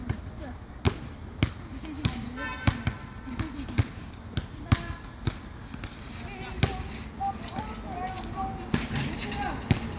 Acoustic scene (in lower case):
residential area